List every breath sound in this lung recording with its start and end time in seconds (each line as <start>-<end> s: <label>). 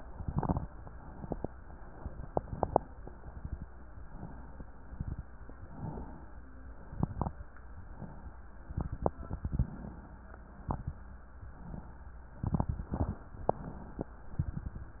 0.00-0.67 s: exhalation
0.00-0.67 s: crackles
0.83-1.53 s: inhalation
2.18-2.88 s: exhalation
2.18-2.88 s: crackles
2.99-3.69 s: inhalation
4.01-4.72 s: inhalation
4.82-5.53 s: exhalation
4.82-5.53 s: crackles
5.65-6.36 s: inhalation
6.81-7.47 s: exhalation
6.81-7.47 s: crackles
7.73-8.44 s: inhalation
8.66-9.77 s: exhalation
8.66-9.77 s: crackles
10.47-11.18 s: inhalation
10.47-11.18 s: crackles
11.36-12.06 s: exhalation
12.36-13.22 s: inhalation
12.38-13.22 s: crackles
13.29-14.15 s: exhalation